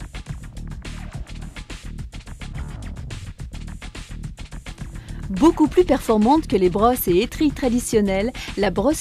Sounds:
Speech, Music

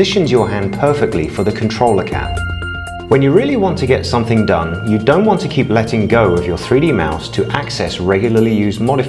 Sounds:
Speech, Music

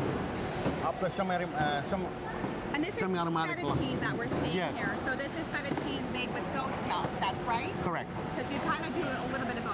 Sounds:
Speech

